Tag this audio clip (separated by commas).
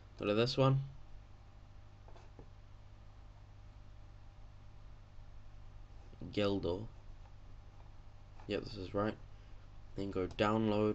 Speech